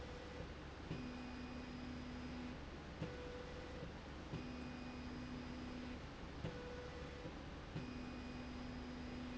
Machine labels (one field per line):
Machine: slide rail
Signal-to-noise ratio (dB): 6 dB